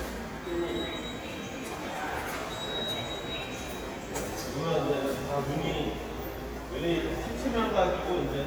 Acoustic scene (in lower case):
subway station